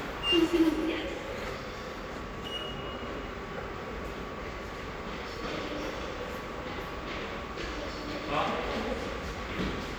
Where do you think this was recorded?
in a subway station